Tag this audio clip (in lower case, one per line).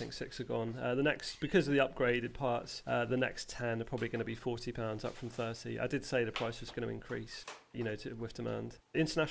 speech